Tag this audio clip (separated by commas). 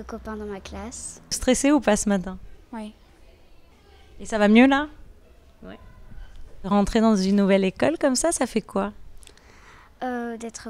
Speech